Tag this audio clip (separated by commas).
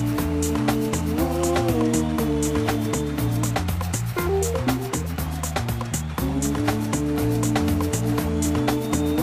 Music